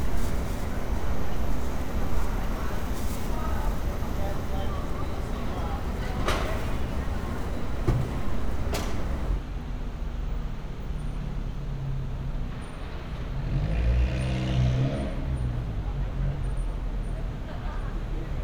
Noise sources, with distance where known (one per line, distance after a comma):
engine of unclear size
person or small group talking